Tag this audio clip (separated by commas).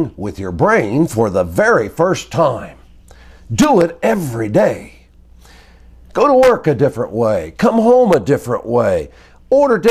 Speech